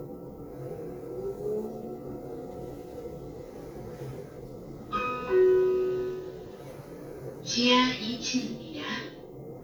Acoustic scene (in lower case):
elevator